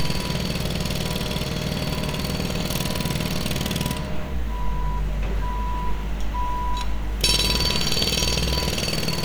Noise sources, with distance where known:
unidentified impact machinery, near; reverse beeper

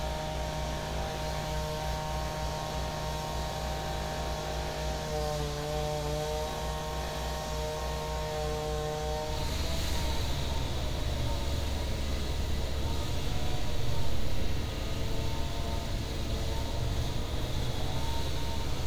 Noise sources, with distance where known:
unidentified powered saw

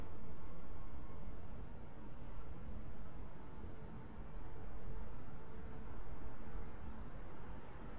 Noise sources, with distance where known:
background noise

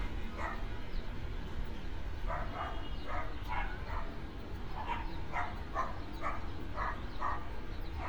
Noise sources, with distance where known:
car horn, far; dog barking or whining, near

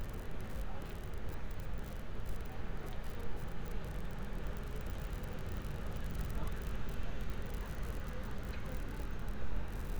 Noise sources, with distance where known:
unidentified human voice, far

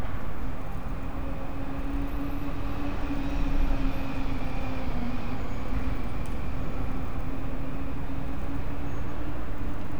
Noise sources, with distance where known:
large-sounding engine

